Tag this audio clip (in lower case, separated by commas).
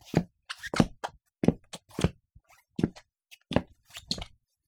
squeak, walk